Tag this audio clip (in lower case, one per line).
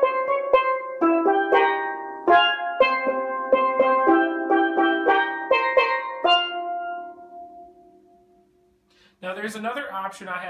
playing steelpan